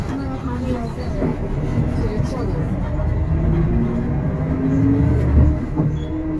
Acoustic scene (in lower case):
bus